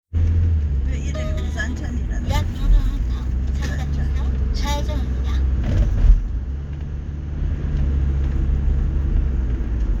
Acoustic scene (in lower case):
car